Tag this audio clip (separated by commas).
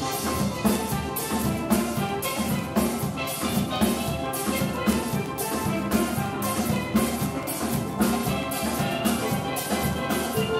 Steelpan, Music